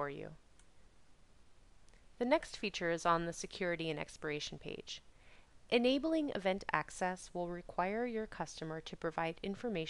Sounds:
speech

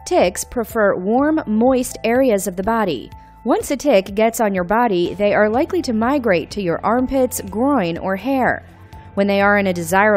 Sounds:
music, speech

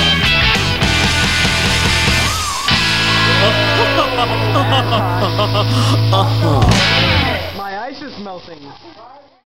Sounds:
music, soundtrack music, speech

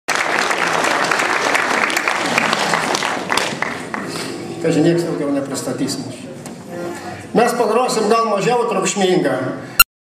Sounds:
speech

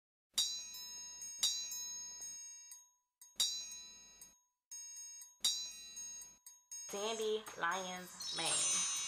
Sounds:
music, speech

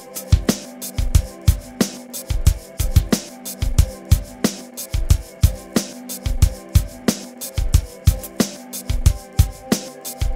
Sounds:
music

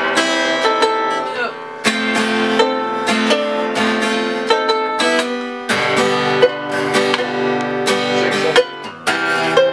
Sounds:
speech, musical instrument, acoustic guitar, plucked string instrument, guitar, strum, music

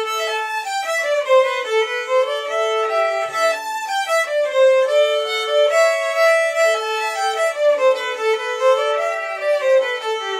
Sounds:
music, violin, musical instrument

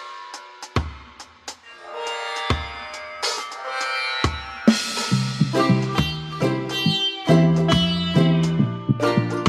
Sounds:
music

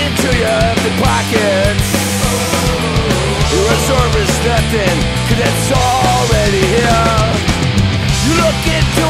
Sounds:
music

